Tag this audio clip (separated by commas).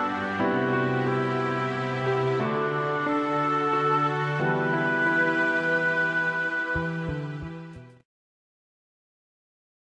Sad music, Music